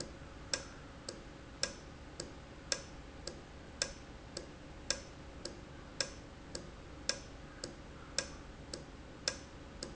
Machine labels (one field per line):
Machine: valve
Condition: normal